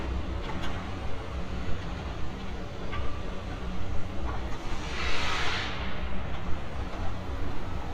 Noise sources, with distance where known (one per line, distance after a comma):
non-machinery impact